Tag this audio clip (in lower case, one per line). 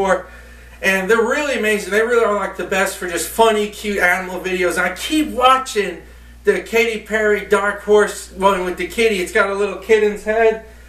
speech